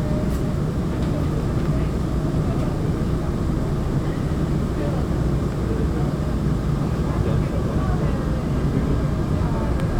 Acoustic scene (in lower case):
subway train